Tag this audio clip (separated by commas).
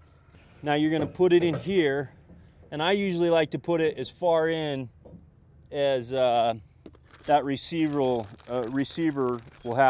Speech